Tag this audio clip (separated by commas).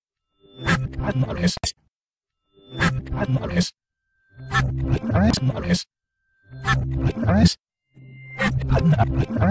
Music